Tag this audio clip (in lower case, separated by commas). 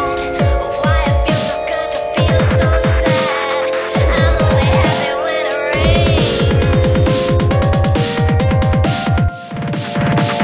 music, electronic music, dubstep